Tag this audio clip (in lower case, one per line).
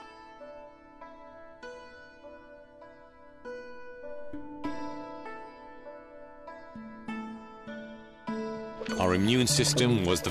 keyboard (musical)